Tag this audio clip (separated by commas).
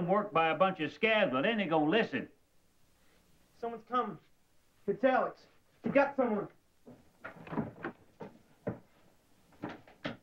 Male speech, Speech